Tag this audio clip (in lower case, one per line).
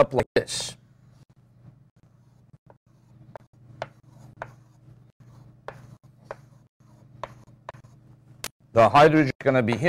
speech